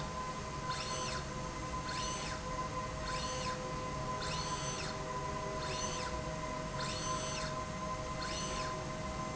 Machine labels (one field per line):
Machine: slide rail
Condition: normal